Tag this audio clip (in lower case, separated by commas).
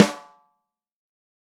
musical instrument, percussion, drum, music, snare drum